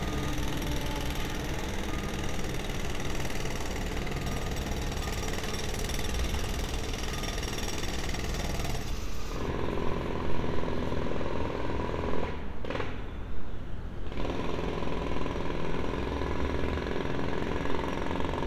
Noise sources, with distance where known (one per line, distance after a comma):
jackhammer